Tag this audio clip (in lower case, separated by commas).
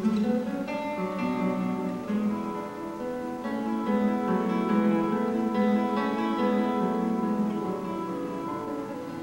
music, playing acoustic guitar, plucked string instrument, acoustic guitar, guitar, musical instrument